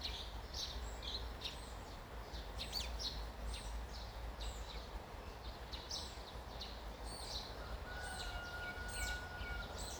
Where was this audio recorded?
in a park